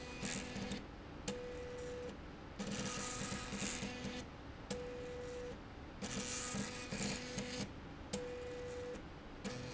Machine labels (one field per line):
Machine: slide rail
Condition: abnormal